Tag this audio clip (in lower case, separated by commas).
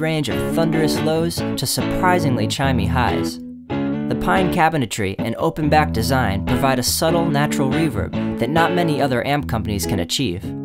plucked string instrument, musical instrument, music, strum, speech, electric guitar, guitar